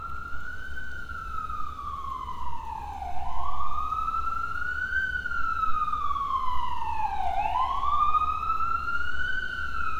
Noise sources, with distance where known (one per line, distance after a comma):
siren, near